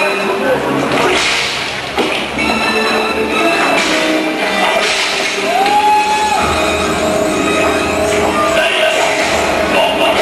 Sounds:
hiss, music

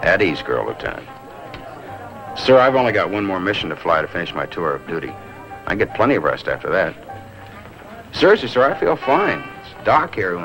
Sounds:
speech, music

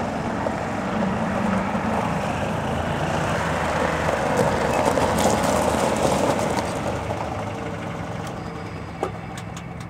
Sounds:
car, vehicle

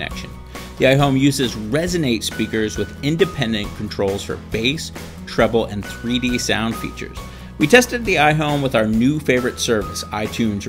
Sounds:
speech, music

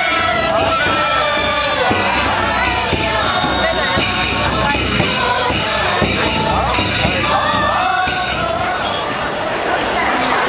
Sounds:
music, speech

